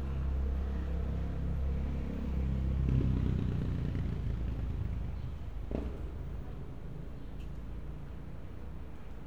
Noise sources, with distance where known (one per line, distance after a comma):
medium-sounding engine